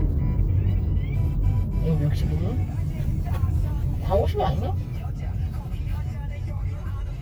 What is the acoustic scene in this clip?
car